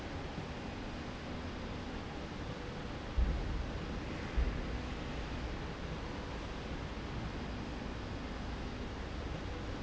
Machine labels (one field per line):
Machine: slide rail